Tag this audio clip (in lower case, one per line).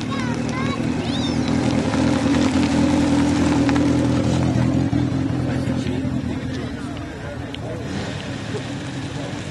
car
vehicle
motor vehicle (road)
speech